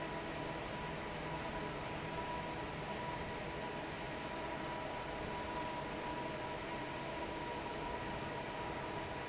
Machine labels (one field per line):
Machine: fan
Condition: normal